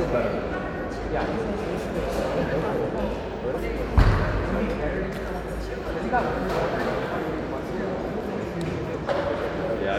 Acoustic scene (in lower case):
crowded indoor space